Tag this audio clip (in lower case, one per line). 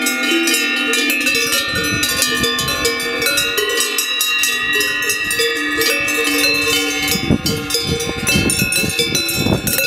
cattle